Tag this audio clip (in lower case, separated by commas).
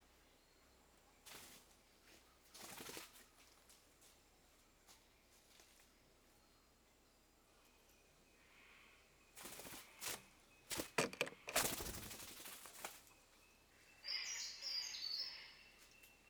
bird, animal, wild animals